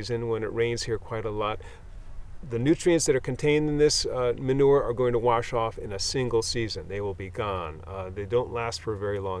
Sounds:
speech

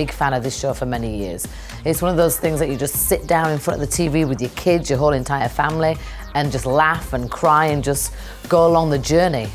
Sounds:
music, speech

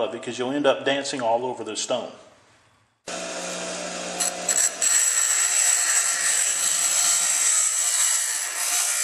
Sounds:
speech

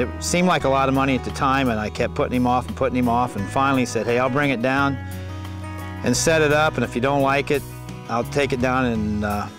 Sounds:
music, speech

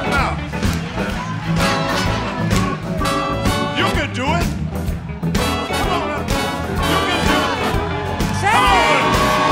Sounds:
rock and roll

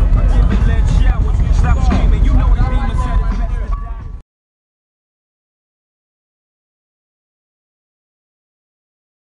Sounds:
music, speech, vehicle

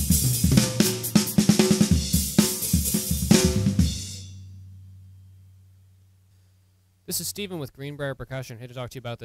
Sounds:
speech, music

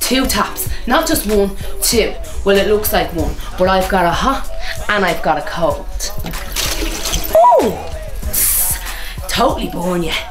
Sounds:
speech, music

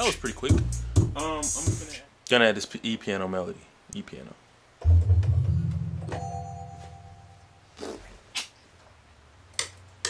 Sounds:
rhythm and blues, speech, music

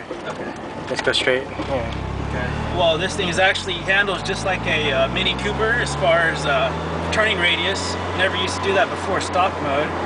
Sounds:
car, outside, urban or man-made, speech, vehicle

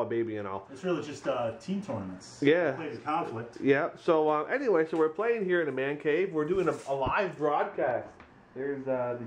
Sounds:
speech, inside a small room

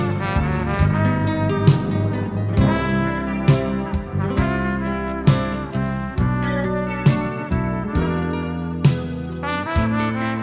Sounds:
music

